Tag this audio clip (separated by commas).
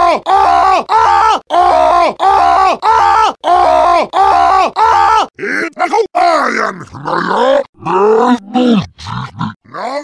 Speech